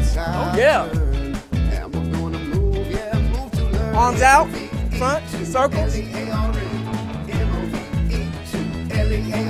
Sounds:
speech, music

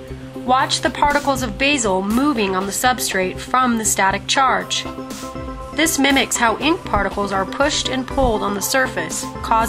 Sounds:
speech, music

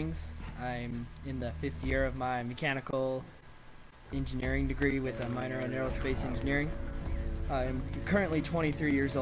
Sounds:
music, speech

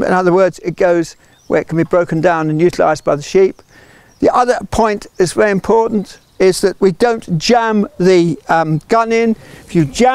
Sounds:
speech

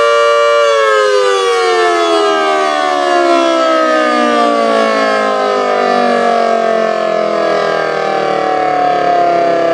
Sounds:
civil defense siren, siren

